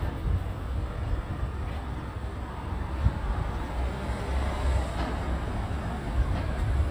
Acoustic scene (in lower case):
street